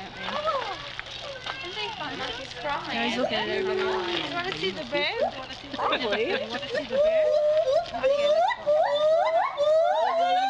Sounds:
gibbon howling

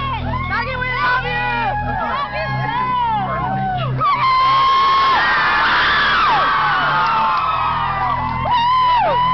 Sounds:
speech, music

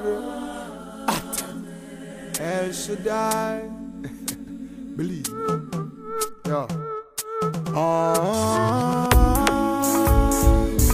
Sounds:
speech, music

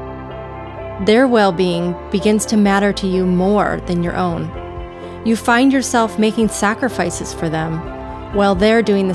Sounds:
speech, music

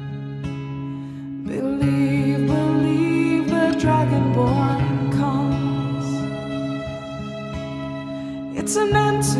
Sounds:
music

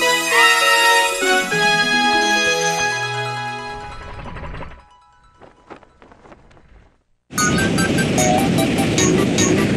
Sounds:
music

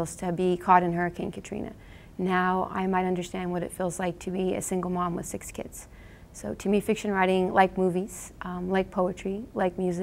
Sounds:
speech

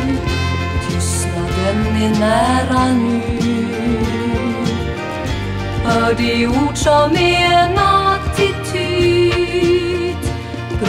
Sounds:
christmas music, music

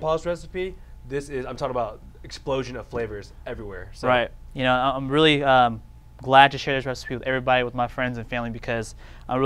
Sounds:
speech

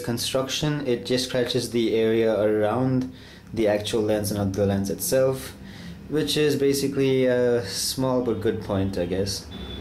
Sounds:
speech

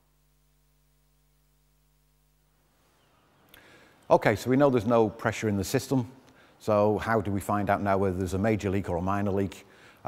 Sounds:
speech

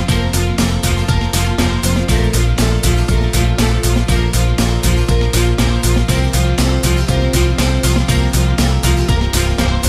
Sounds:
music

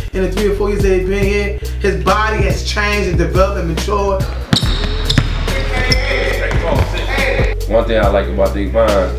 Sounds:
music, speech

